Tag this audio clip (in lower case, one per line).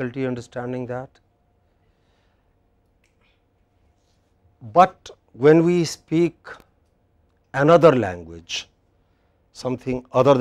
speech